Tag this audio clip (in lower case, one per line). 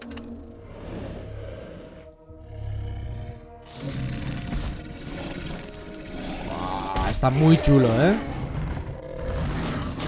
dinosaurs bellowing